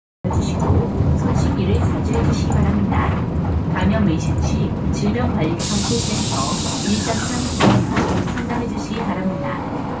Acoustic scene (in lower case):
bus